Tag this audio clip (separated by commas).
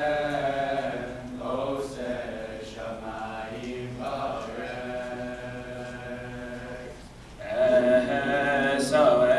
Male singing, Choir